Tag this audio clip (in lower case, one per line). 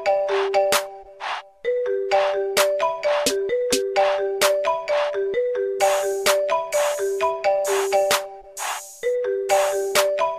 music
xylophone